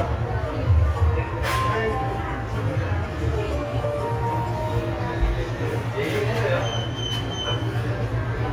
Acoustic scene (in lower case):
cafe